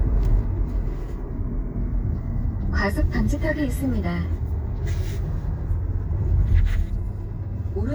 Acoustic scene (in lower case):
car